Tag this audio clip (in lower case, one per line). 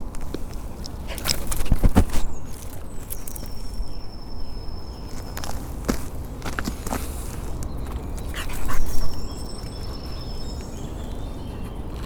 animal
pets
dog